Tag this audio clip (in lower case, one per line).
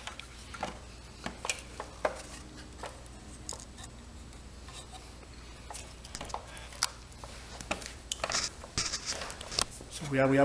inside a small room